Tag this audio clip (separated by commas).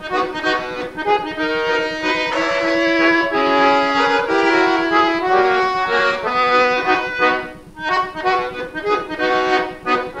Accordion, playing accordion